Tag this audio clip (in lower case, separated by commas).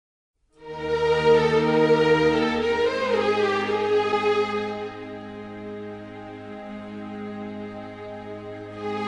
sad music, music